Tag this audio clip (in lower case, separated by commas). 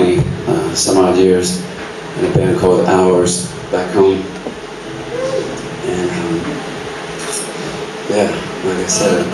speech